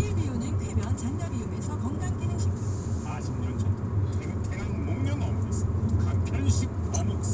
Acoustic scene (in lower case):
car